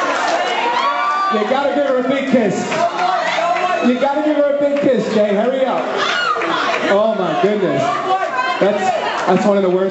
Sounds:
speech

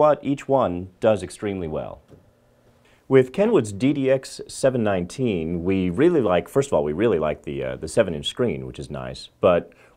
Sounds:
speech

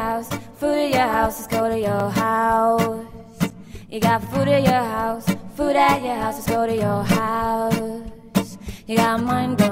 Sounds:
music

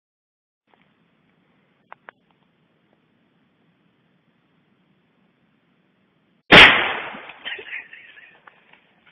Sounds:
cap gun shooting

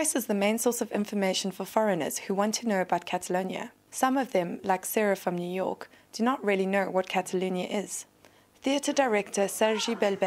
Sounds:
speech

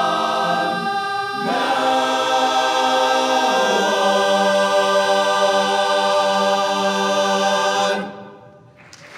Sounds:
singing
applause
choir

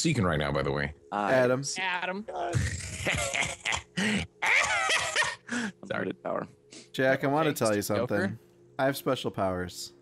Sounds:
speech

